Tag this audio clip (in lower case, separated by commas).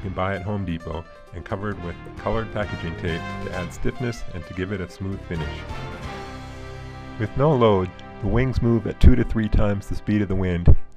music, speech